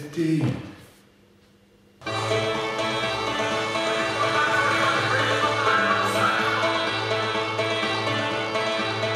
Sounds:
music
speech

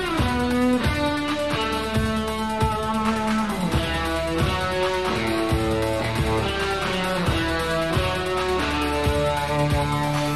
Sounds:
music

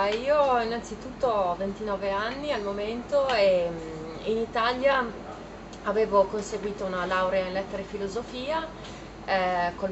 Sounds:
speech

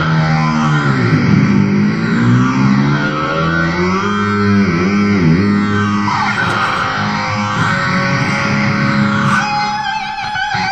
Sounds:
music
heavy metal
guitar
musical instrument
plucked string instrument

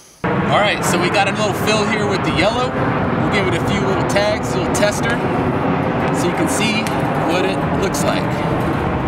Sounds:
speech

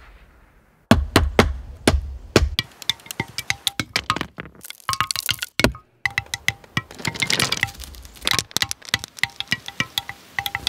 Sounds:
music

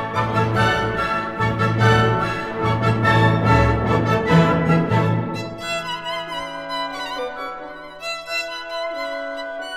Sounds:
musical instrument
fiddle
music

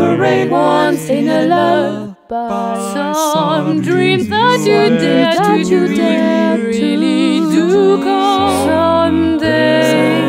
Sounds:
music

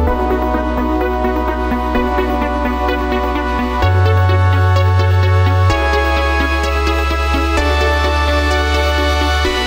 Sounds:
music
electronic music

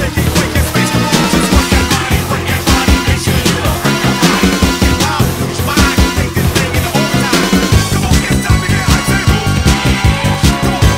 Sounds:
music

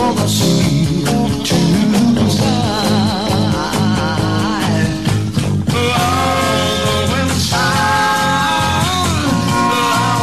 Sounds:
music

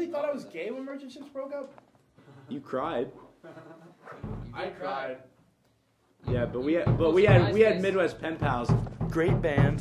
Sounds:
speech

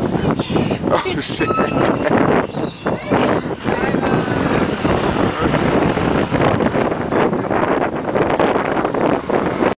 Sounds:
vehicle
speech

